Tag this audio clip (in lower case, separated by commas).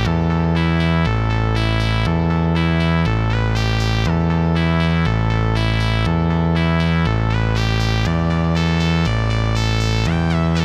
harmonic, music